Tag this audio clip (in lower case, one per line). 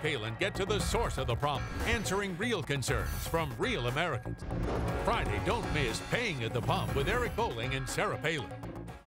speech
music